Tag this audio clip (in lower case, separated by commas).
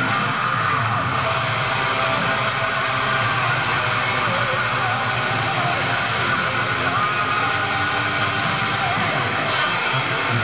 plucked string instrument, music, musical instrument, electric guitar, guitar